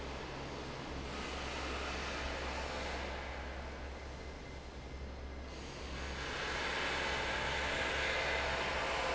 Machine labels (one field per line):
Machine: fan